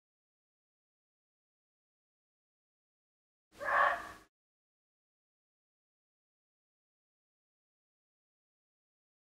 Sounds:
fox barking

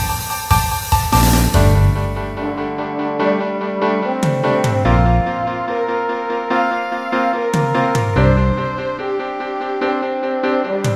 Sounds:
music
theme music

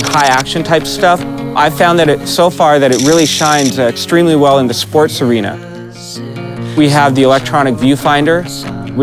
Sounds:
speech
music

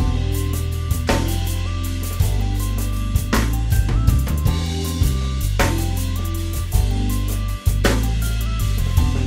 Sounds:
playing bass drum

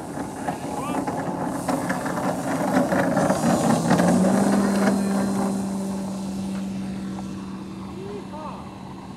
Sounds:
speech
fixed-wing aircraft
airscrew
aircraft

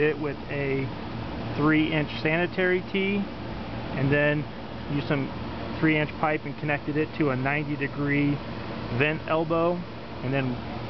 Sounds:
speech

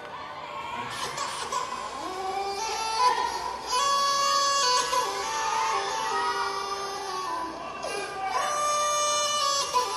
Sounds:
speech

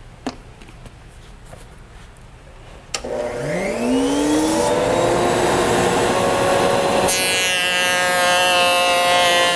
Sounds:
power tool
tools

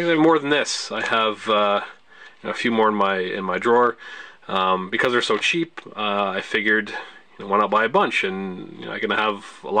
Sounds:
speech

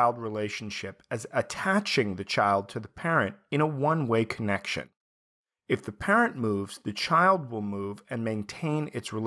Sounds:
speech

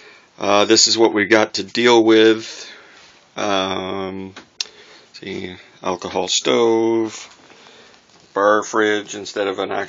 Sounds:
speech

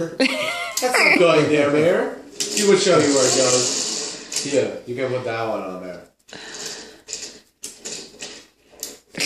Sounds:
breathing
speech

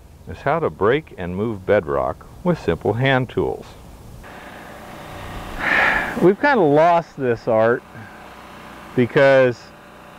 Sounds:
speech

